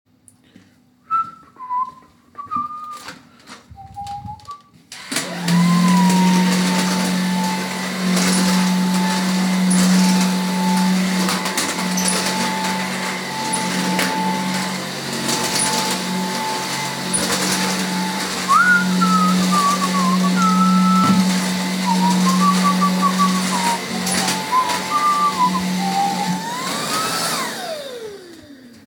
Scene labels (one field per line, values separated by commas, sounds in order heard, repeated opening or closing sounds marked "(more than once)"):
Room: living room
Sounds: footsteps, vacuum cleaner